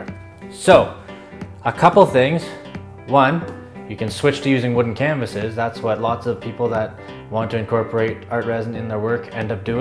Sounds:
music, speech

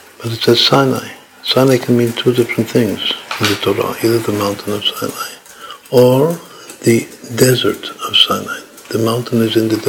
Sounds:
inside a small room, speech

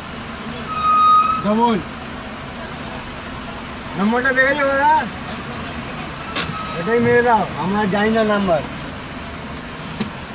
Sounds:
vehicle, roadway noise

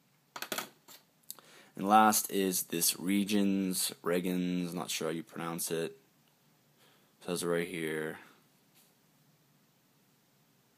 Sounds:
inside a small room, speech

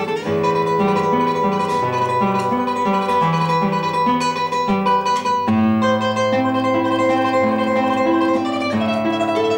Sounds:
pizzicato

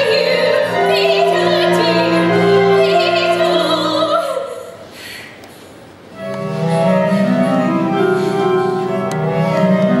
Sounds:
music

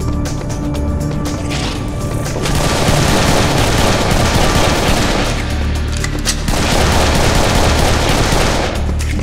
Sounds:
music, inside a large room or hall

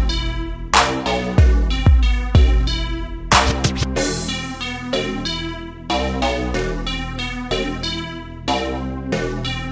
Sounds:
hip hop music, music, sampler

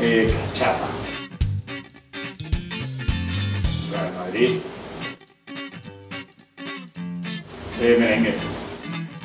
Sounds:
music, speech

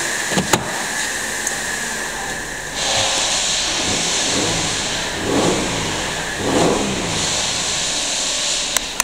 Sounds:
medium engine (mid frequency), revving, vehicle, car

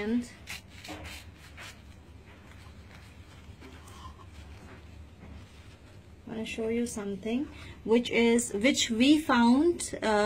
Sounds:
speech

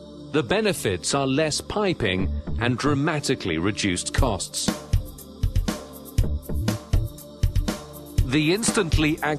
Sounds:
music, speech

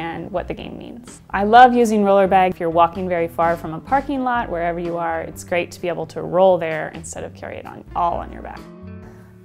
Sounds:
speech, music

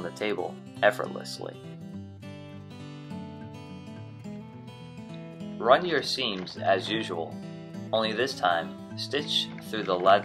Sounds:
speech, music

